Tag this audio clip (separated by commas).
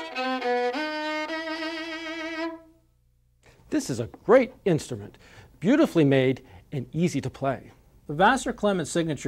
Violin, Music, Speech, Musical instrument